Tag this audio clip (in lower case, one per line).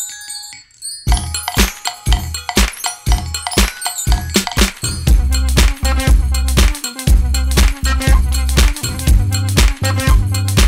playing cymbal